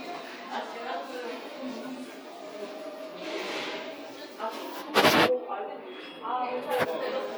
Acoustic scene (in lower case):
crowded indoor space